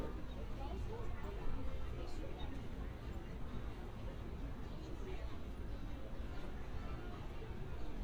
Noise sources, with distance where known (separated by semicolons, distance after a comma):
person or small group talking, far